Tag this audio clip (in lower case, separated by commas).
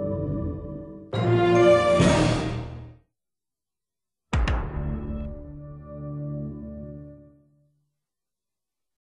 music